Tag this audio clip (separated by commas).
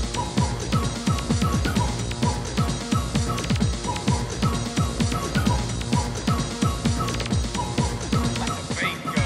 Music